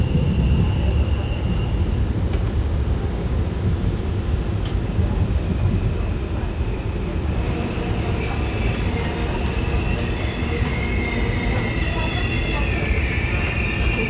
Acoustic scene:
subway train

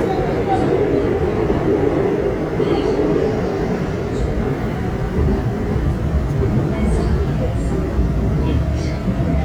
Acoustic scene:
subway train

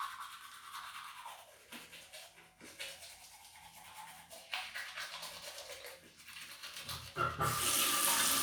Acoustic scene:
restroom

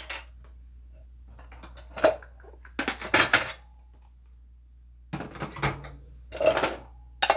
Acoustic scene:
kitchen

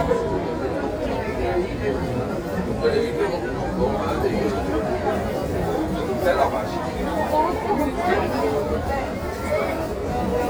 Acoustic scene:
crowded indoor space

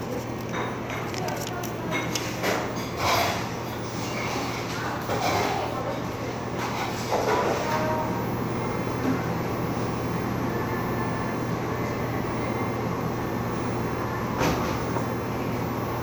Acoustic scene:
cafe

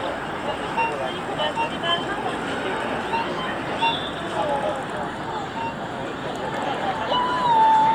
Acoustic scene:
park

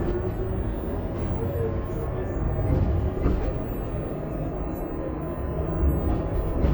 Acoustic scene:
bus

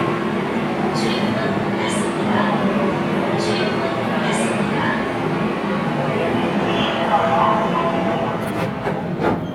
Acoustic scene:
subway train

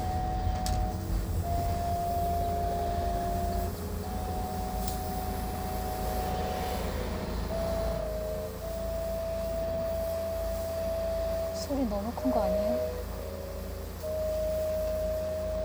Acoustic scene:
car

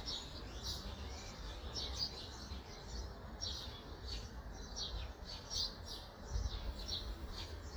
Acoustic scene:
park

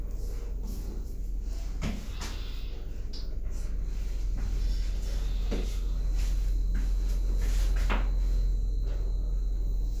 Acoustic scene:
elevator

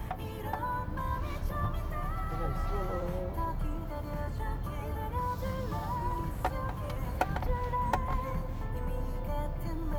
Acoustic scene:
car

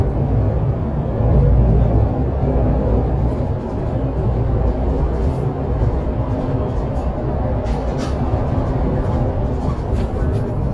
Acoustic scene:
bus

